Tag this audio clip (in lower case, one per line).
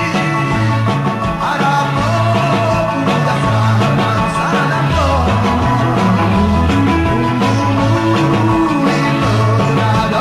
psychedelic rock
music
rock and roll
rock music
roll